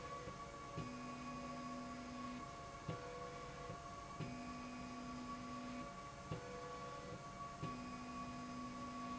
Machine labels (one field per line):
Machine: slide rail